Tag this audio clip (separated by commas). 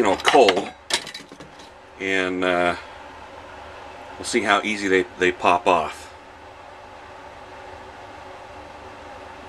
Speech